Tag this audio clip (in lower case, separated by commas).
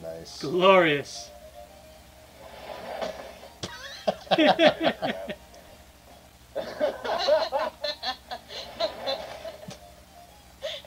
speech